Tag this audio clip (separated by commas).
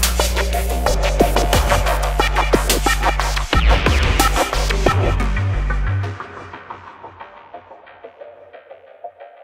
Electronic music, Music